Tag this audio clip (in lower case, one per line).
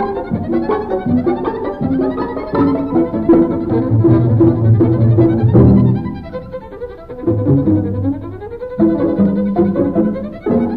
fiddle
musical instrument
music
orchestra